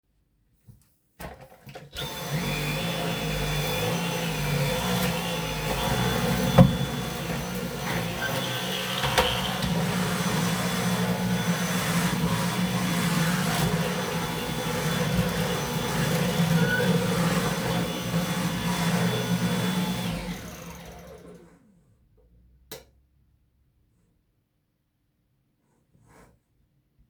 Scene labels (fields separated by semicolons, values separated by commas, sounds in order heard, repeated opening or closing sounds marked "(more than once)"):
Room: living room; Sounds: vacuum cleaner, light switch